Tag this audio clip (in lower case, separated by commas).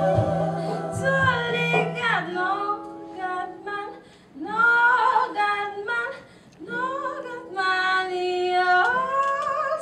music, singing, inside a large room or hall